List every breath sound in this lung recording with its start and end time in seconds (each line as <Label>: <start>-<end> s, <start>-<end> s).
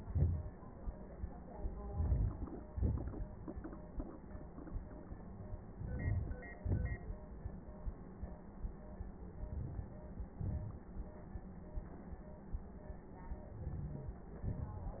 Inhalation: 1.86-2.49 s, 5.81-6.38 s, 9.49-9.89 s, 13.59-14.21 s
Exhalation: 2.69-3.27 s, 6.64-7.08 s, 10.44-10.84 s, 14.52-15.00 s